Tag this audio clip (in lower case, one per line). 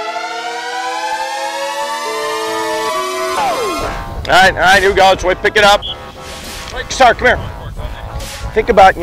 music
speech